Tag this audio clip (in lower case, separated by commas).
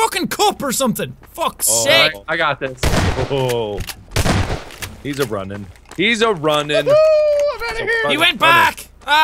gunfire